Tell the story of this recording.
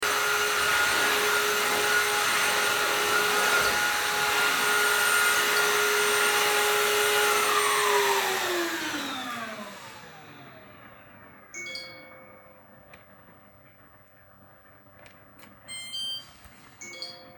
Doing vacume cleaner while I received some messages on my phone and then the washing machine finished and beeped